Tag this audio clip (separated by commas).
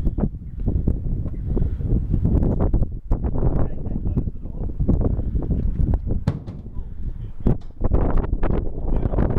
Speech